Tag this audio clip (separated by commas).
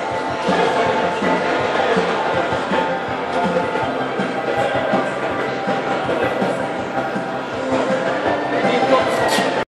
Speech, Music